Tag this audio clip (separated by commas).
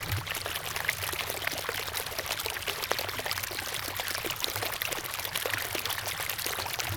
Liquid, Water, Stream